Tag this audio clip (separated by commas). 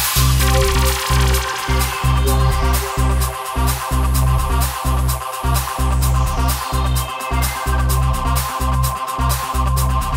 House music, Music